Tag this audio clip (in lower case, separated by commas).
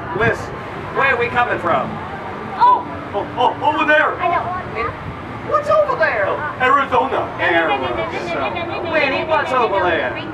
speech